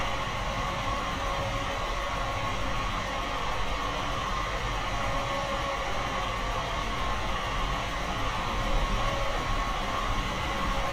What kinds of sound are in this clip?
large-sounding engine